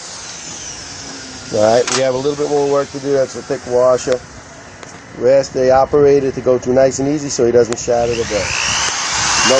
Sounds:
tools, speech

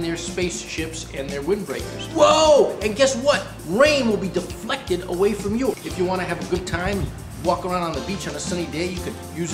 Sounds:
speech, music

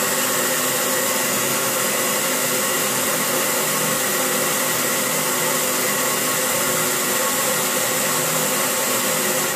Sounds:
hair dryer

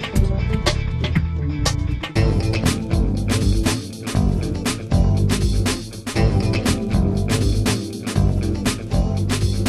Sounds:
music

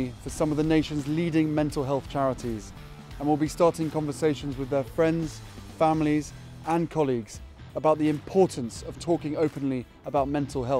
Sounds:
music, speech

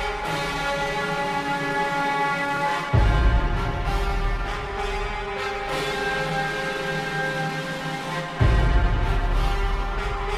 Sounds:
music, sound effect

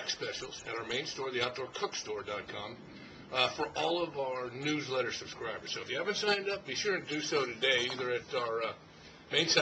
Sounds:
speech

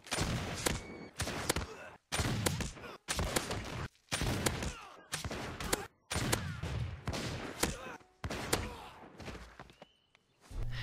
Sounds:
firing muskets

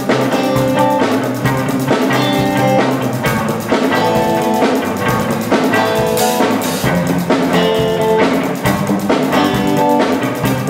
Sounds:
soundtrack music, music, rhythm and blues

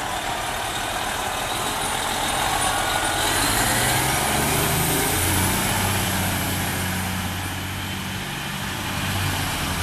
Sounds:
truck, vehicle

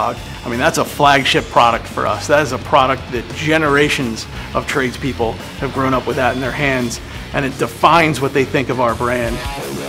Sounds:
power tool, wood, tools, drill

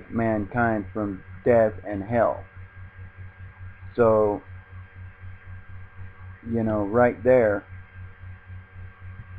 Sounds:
speech

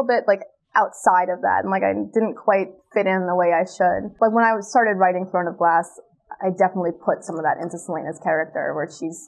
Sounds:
woman speaking, speech

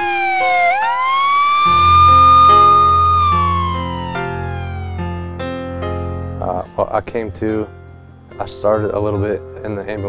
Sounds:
music, inside a small room, ambulance (siren), siren, speech, emergency vehicle

